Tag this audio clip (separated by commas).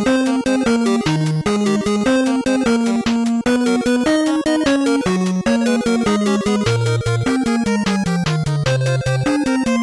Music